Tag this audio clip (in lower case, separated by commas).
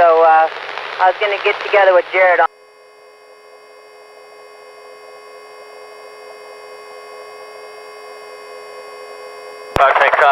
speech, helicopter, vehicle